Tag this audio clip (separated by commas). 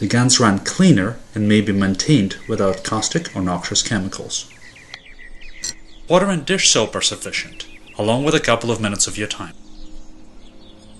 Speech